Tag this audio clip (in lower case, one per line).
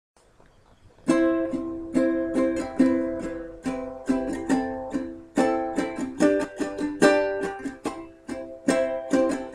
playing ukulele